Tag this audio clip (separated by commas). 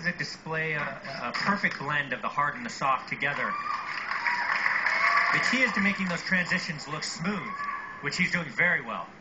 Speech